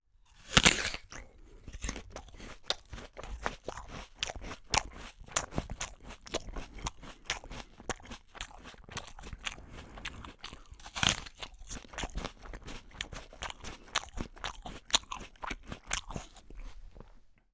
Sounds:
chewing

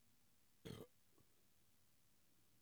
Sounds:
burping

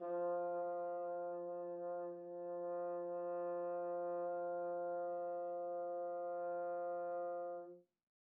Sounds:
musical instrument
brass instrument
music

